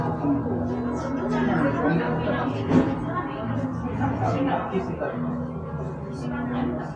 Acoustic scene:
cafe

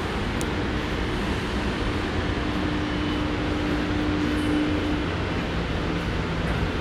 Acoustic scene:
subway station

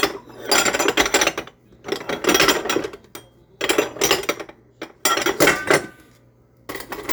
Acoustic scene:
kitchen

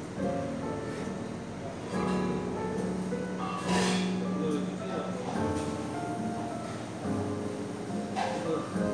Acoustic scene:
cafe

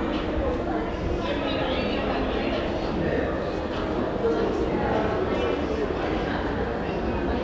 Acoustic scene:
crowded indoor space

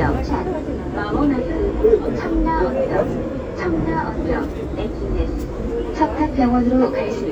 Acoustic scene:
subway train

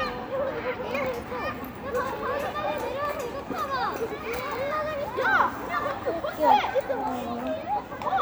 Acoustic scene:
residential area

